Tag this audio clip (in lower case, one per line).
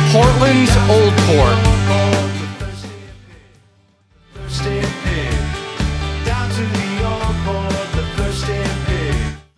speech
music